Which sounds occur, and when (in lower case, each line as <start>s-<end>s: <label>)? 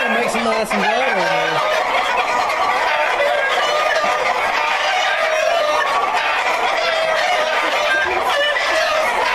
0.0s-1.6s: man speaking
0.0s-9.3s: rooster
4.0s-4.1s: generic impact sounds